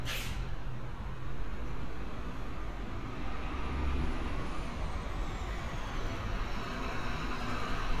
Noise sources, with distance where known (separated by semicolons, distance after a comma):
engine of unclear size, near